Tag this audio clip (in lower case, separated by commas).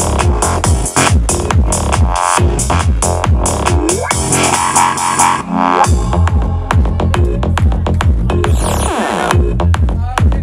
music, trance music, electronic music, speech